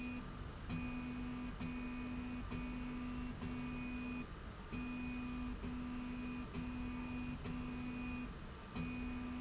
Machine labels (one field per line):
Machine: slide rail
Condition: normal